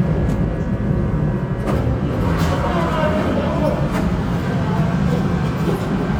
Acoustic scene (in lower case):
subway train